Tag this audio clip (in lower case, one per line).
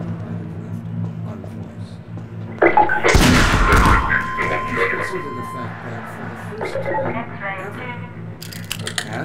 speech